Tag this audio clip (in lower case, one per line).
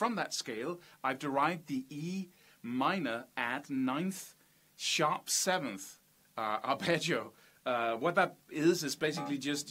speech